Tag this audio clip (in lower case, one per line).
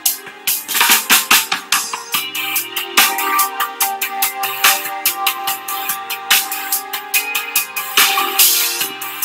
music